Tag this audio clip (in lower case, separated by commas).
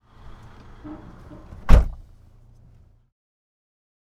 motor vehicle (road), slam, home sounds, vehicle, door, car